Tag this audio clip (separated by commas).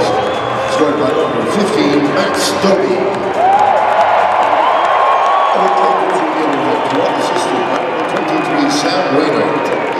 Speech, Crowd